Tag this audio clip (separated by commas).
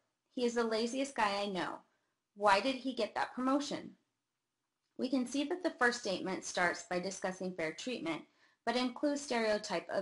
Speech